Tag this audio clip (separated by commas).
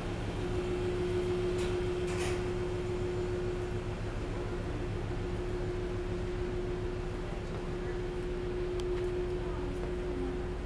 Speech